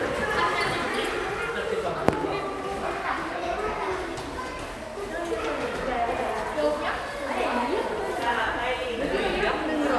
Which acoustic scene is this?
crowded indoor space